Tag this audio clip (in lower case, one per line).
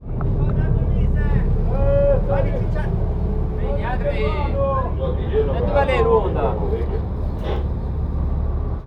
vehicle
boat